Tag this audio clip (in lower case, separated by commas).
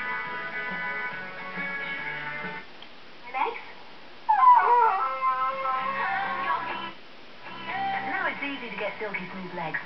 radio, speech, music